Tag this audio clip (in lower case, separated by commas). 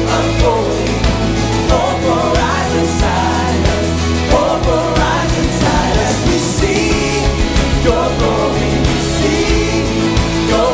exciting music, music